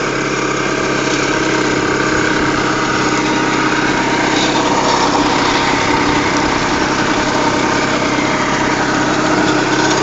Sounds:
lawn mower
vehicle
lawn mowing

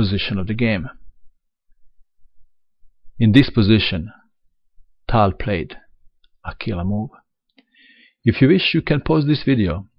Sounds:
narration

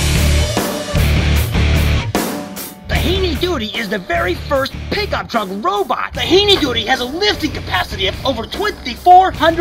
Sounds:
music
speech

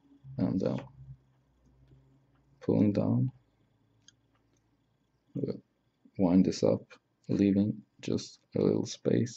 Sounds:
narration
speech

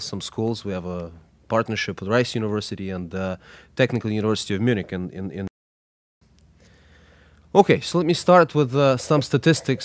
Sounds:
speech

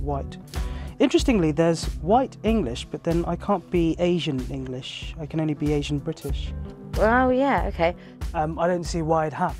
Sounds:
music
speech

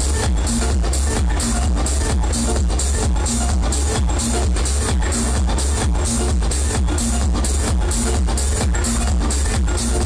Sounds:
music
sound effect

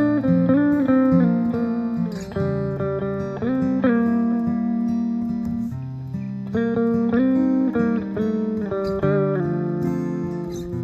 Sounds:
musical instrument
playing electric guitar
strum
music
electric guitar
guitar
plucked string instrument

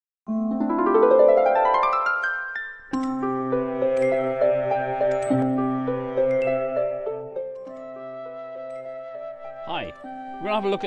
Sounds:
speech
music

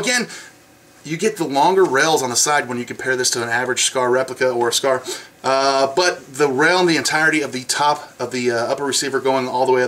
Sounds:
speech

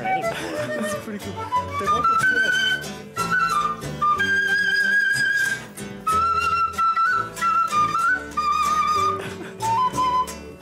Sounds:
music
flute
speech

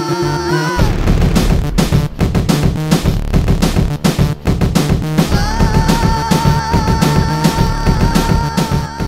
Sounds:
music

